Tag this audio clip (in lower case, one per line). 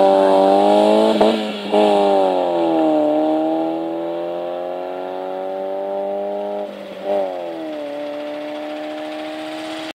rustle
clatter